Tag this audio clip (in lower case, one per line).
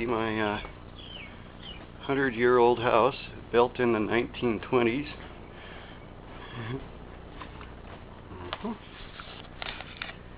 speech